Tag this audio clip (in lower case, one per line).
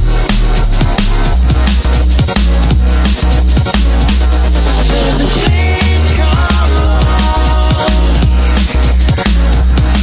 music
drum and bass